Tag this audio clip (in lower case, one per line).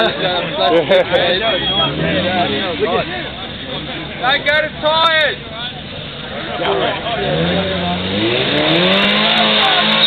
speech
car
vehicle